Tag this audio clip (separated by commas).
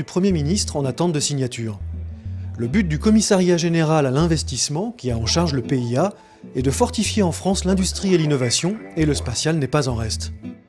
Speech, Music